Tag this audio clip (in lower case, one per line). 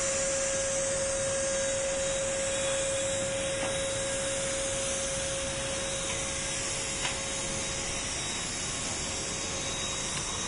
spray